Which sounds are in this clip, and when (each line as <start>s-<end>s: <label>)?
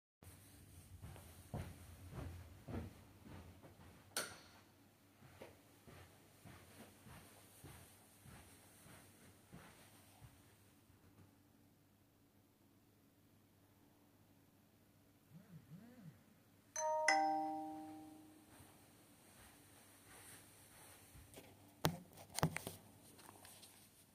1.4s-4.1s: footsteps
4.1s-4.5s: light switch
5.1s-10.8s: footsteps
15.3s-16.2s: phone ringing
16.7s-18.7s: phone ringing